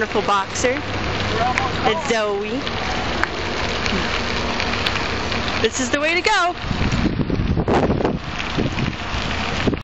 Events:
[0.00, 9.56] bicycle
[0.00, 9.56] mechanisms
[0.00, 9.56] wind
[0.04, 0.77] female speech
[1.24, 1.92] man speaking
[1.48, 1.59] tick
[1.80, 2.58] female speech
[3.16, 3.28] tick
[3.84, 4.03] human voice
[5.56, 6.52] female speech
[6.56, 8.25] wind noise (microphone)
[8.48, 8.94] wind noise (microphone)

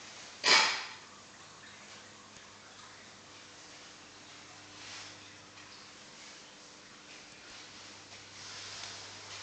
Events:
[0.00, 9.42] water
[0.40, 0.91] generic impact sounds

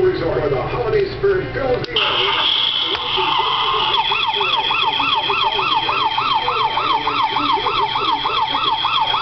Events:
[0.00, 9.21] mechanisms
[1.85, 1.92] tick
[2.96, 3.03] generic impact sounds
[3.98, 9.21] siren

